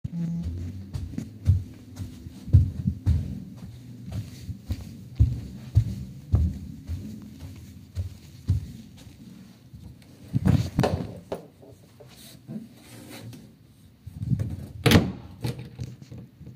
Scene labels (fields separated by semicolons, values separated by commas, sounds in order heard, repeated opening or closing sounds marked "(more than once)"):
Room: bedroom; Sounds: phone ringing, footsteps, wardrobe or drawer (more than once), door